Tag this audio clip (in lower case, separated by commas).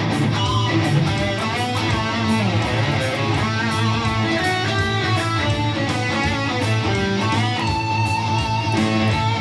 musical instrument, plucked string instrument, strum, acoustic guitar, guitar, music